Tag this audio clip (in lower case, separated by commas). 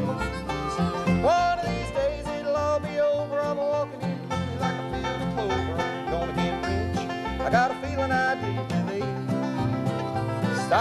bluegrass, singing, country, music